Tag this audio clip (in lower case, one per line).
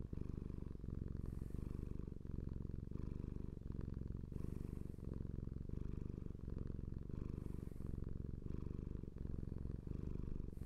purr